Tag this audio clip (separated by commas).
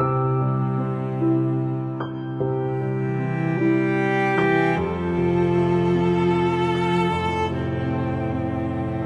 Music